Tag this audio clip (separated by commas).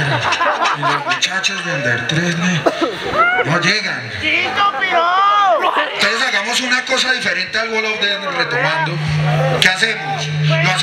Speech